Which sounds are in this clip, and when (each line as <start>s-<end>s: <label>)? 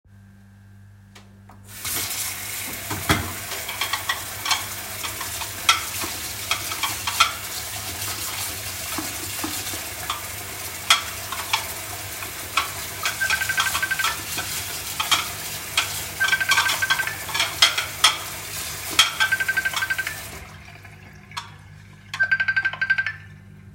1.5s-20.6s: running water
2.8s-3.4s: cutlery and dishes
3.8s-4.7s: cutlery and dishes
5.0s-6.2s: cutlery and dishes
6.4s-7.5s: cutlery and dishes
9.9s-10.2s: cutlery and dishes
10.8s-11.7s: cutlery and dishes
12.4s-12.8s: cutlery and dishes
12.9s-14.2s: phone ringing
13.0s-14.2s: cutlery and dishes
14.8s-16.0s: cutlery and dishes
16.2s-17.1s: cutlery and dishes
16.2s-17.1s: phone ringing
17.3s-18.3s: cutlery and dishes
18.5s-19.3s: cutlery and dishes
19.2s-20.2s: phone ringing
21.3s-21.6s: cutlery and dishes
22.1s-23.2s: phone ringing
22.2s-22.5s: cutlery and dishes